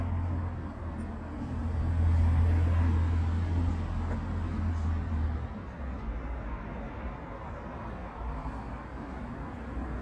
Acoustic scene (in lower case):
residential area